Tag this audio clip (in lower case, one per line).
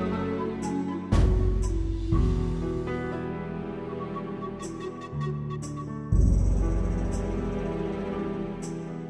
music
new-age music